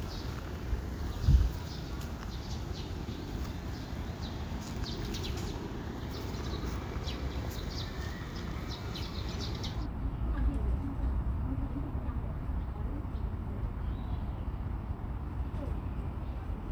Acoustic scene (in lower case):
park